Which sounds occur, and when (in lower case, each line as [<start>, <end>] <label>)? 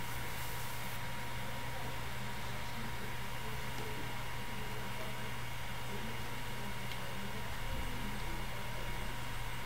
[0.00, 9.65] mechanisms
[1.68, 4.04] speech
[3.71, 3.81] clicking
[4.51, 5.39] speech
[5.04, 5.13] clicking
[5.82, 8.21] speech
[6.85, 6.95] clicking
[8.13, 8.23] clicking
[8.55, 9.07] speech